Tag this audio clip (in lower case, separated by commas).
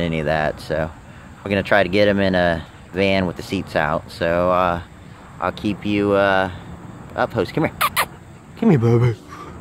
speech